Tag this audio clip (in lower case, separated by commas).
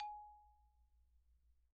xylophone, musical instrument, mallet percussion, music, percussion